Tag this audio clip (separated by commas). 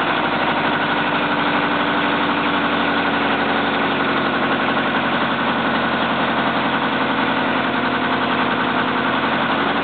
Truck, Vehicle